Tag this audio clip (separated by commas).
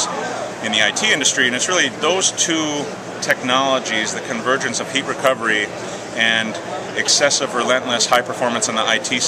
Speech